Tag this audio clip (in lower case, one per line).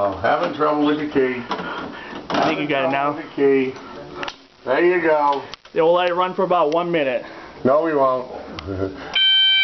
speech
fire alarm
smoke detector